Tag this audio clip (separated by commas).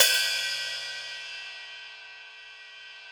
Percussion, Musical instrument, Cymbal, Music, Hi-hat